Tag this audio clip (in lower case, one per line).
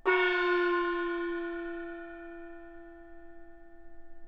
music
percussion
musical instrument
gong